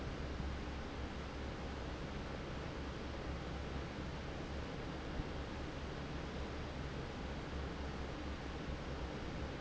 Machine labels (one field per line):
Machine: fan